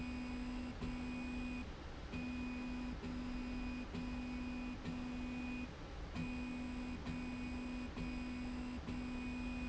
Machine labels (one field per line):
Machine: slide rail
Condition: normal